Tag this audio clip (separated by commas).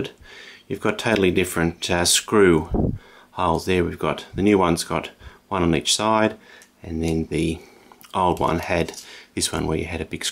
Speech